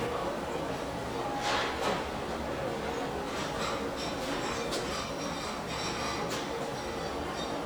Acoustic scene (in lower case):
restaurant